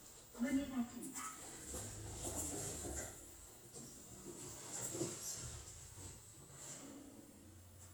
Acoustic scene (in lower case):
elevator